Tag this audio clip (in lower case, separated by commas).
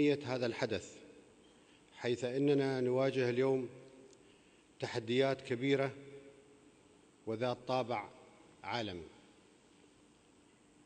speech, man speaking